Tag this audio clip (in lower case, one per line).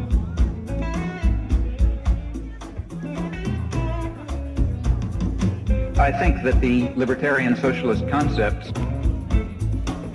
music
speech